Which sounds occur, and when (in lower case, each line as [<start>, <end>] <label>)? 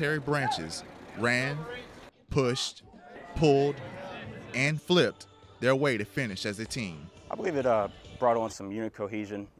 [0.00, 0.81] man speaking
[0.00, 2.06] car
[1.13, 1.88] man speaking
[2.10, 5.05] background noise
[2.24, 2.77] man speaking
[2.37, 2.75] shout
[2.87, 5.07] man speaking
[5.07, 8.58] music
[5.56, 7.00] man speaking
[7.29, 7.87] man speaking
[8.19, 9.45] man speaking
[8.59, 9.55] background noise